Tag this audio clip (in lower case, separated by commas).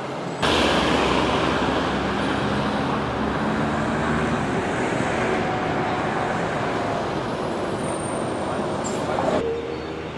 vehicle, bus